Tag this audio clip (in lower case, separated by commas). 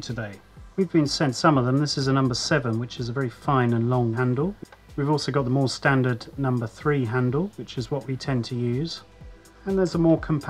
music, speech